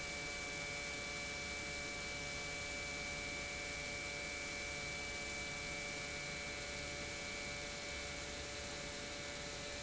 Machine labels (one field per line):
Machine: pump